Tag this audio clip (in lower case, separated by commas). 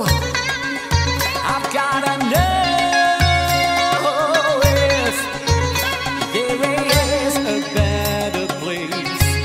music, folk music